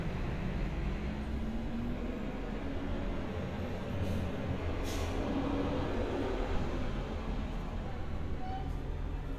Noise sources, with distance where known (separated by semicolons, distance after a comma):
engine of unclear size